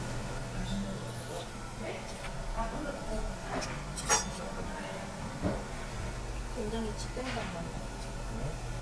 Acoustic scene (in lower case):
restaurant